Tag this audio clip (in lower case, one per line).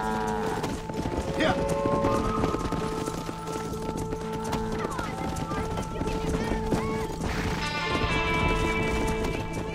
horse
music
speech
animal